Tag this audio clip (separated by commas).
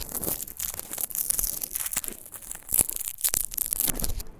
crinkling